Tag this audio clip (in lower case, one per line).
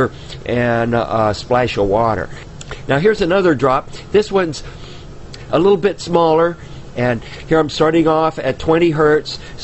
speech